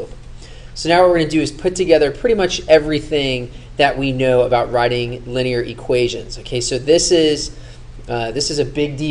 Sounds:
Speech

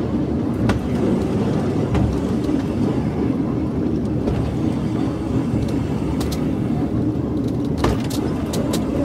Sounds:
outside, rural or natural, Vehicle, Train, Rail transport

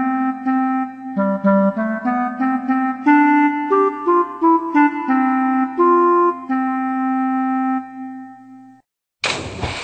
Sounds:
Music

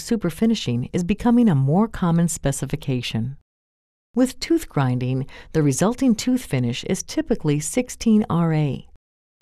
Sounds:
Speech

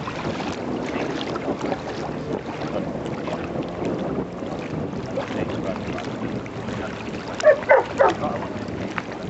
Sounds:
Stream, Dog, Speech, Bow-wow

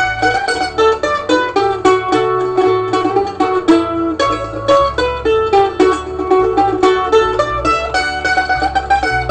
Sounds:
Music, Plucked string instrument, Mandolin, Musical instrument, Ukulele

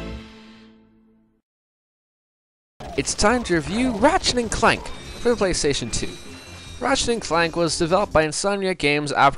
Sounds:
Speech

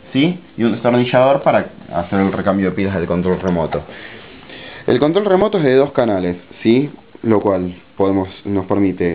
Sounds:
Speech

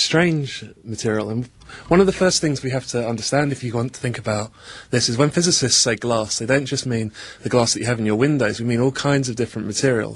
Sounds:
Speech

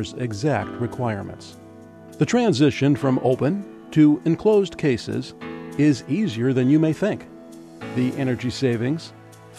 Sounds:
Speech, Music

